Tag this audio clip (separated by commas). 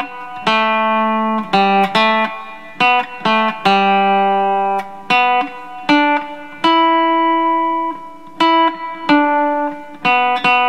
Guitar, Tapping (guitar technique), Musical instrument, Plucked string instrument, Music